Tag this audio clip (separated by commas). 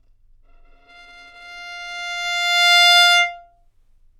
Music, Bowed string instrument, Musical instrument